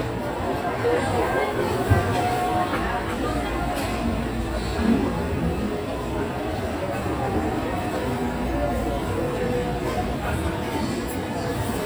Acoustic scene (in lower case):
restaurant